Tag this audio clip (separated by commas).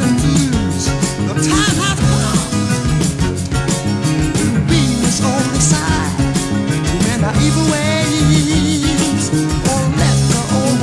Music, Ska